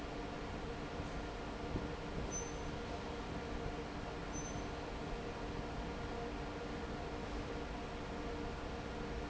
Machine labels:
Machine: fan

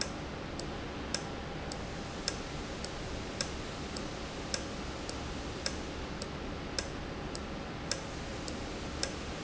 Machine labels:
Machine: valve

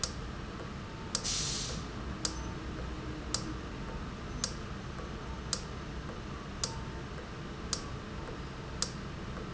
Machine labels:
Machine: valve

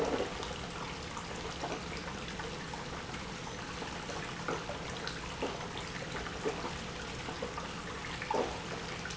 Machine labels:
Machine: pump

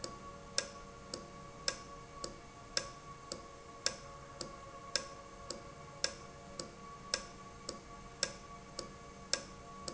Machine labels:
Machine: valve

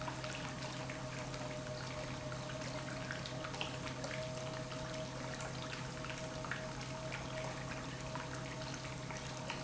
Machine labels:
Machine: pump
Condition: normal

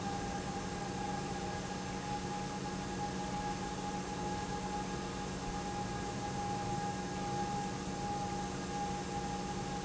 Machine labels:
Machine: pump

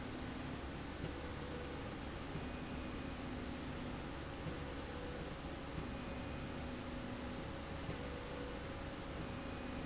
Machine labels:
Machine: slide rail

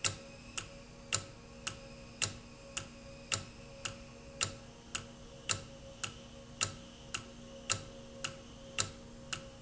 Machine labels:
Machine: valve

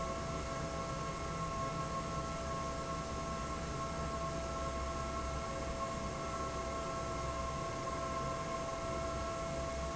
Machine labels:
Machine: fan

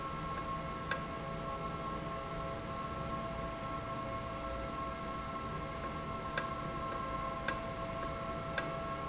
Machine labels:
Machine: valve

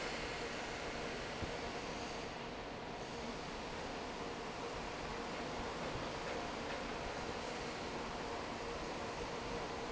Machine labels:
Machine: fan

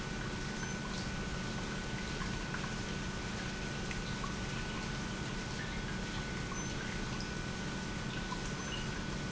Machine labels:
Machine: pump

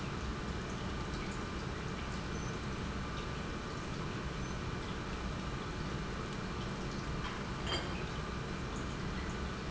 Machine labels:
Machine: pump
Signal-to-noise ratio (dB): -6 dB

